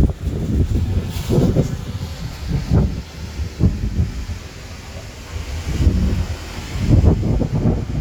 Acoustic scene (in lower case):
street